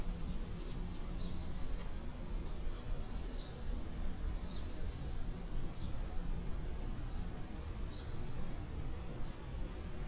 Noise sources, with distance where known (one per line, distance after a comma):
background noise